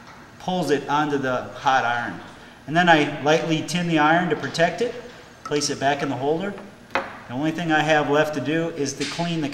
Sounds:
Speech, inside a small room

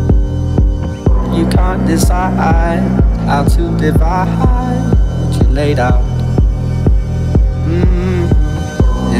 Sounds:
Music

